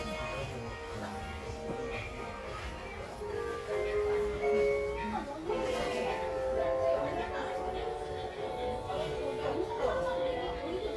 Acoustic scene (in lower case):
crowded indoor space